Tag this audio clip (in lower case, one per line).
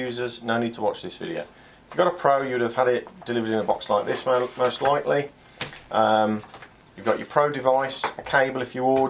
speech
inside a small room